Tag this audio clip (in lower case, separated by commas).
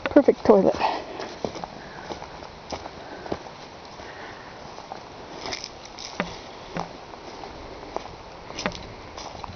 outside, rural or natural, speech